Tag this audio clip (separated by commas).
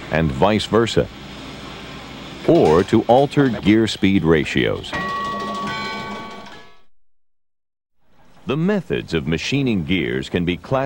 Speech